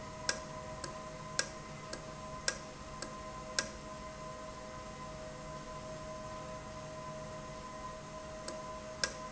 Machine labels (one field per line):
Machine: valve